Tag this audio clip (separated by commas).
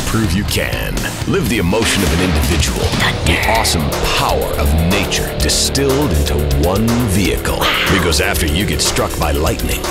Speech, Music